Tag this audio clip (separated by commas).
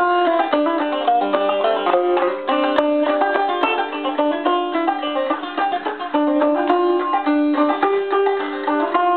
Musical instrument, Music, Plucked string instrument, Banjo, playing banjo, Country, Bluegrass